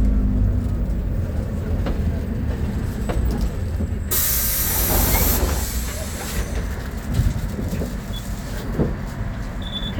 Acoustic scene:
bus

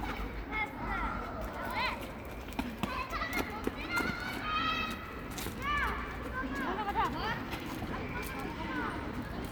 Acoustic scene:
park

